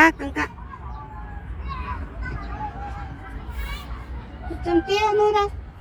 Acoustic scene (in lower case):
park